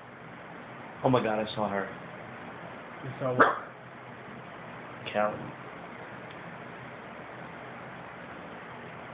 A man speaking then a dog barks